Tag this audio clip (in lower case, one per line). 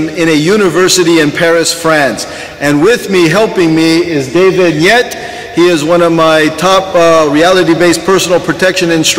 speech